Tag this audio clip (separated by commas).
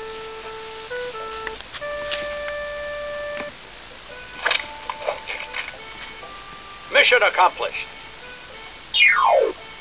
Music, Speech